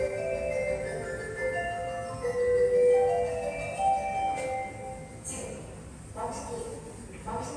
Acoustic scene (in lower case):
subway station